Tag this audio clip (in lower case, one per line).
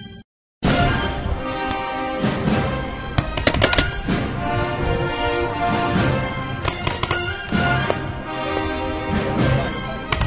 music
theme music